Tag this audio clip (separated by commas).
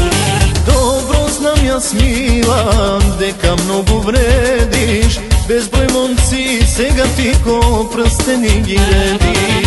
Music